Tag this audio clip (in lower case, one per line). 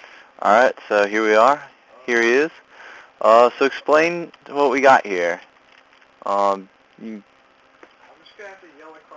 speech